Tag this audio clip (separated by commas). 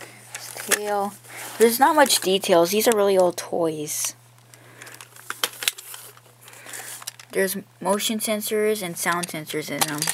Speech